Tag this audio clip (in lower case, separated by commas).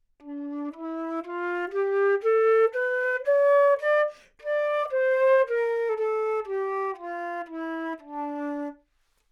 musical instrument, woodwind instrument, music